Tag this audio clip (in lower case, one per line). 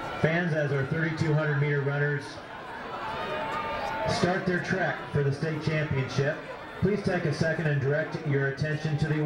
speech